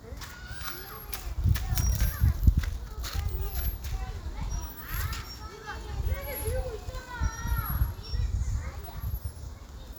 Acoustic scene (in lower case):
park